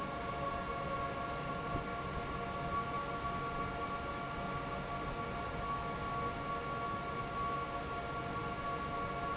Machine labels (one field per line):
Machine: fan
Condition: normal